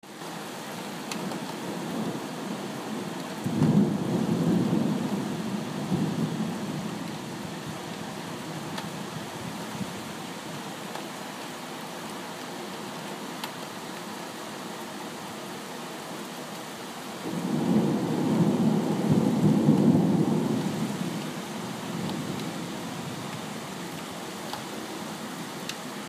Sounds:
Water, Rain

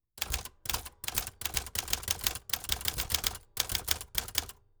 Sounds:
Typewriter, Typing, home sounds

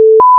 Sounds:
Alarm

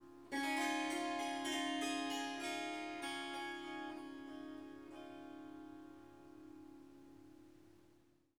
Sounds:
Music, Harp, Musical instrument

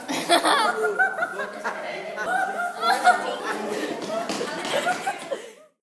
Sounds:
Human voice, Giggle, Laughter, Chuckle

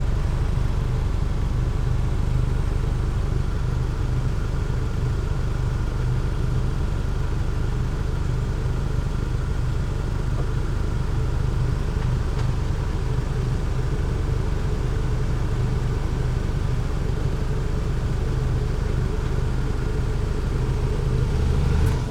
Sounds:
Vehicle, Engine, Car, revving, Idling, Motor vehicle (road)

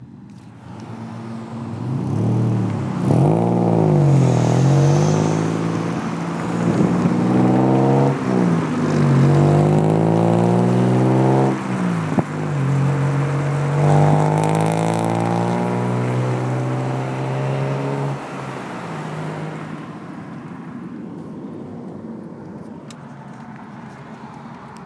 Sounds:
Motor vehicle (road), Vehicle, roadway noise

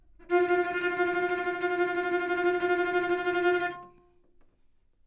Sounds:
Musical instrument, Bowed string instrument, Music

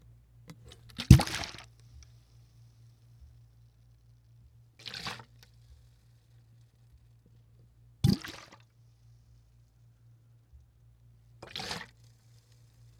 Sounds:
Liquid, splatter

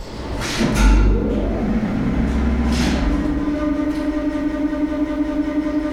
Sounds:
Mechanisms, Engine

